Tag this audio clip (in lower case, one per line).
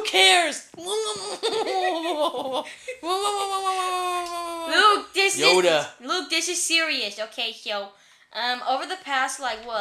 speech
belly laugh